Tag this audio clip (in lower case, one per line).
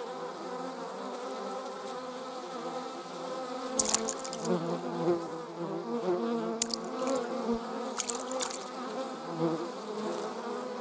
etc. buzzing